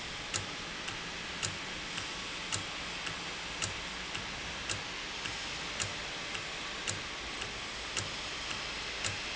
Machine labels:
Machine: valve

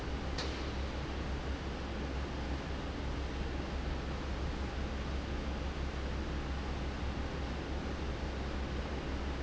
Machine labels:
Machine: fan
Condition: abnormal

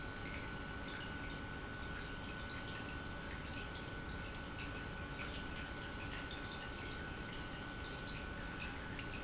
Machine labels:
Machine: pump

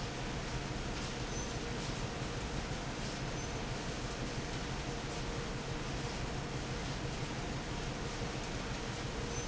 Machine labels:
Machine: fan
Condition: normal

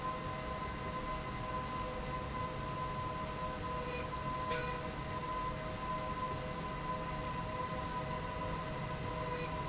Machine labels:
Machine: slide rail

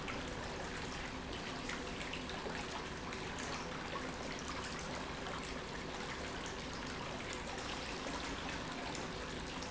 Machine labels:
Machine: pump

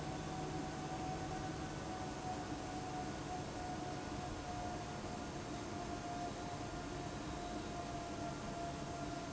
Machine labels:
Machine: fan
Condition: abnormal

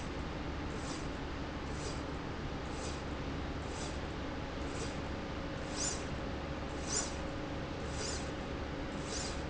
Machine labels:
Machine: slide rail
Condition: normal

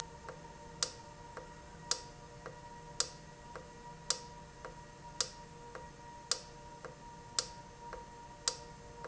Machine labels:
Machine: valve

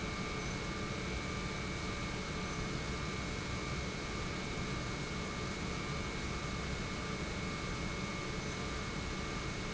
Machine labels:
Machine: pump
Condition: normal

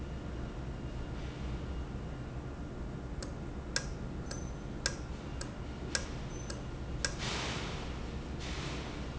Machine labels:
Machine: valve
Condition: normal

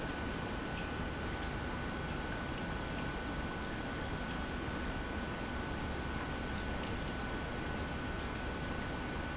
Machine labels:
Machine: pump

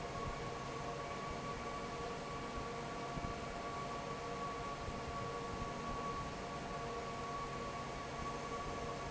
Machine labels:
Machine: fan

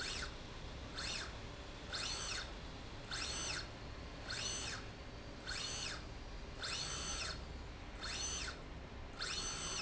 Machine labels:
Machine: slide rail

